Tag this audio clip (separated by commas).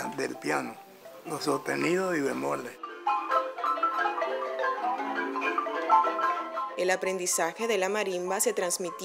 Musical instrument, Marimba, Music, Speech